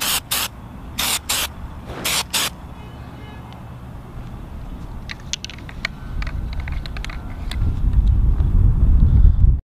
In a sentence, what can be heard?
A spray can be sprayed in quick bursts then the can is shaken